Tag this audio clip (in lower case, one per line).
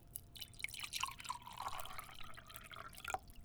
liquid